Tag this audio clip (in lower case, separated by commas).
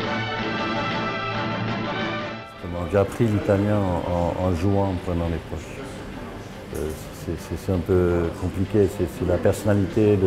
speech, music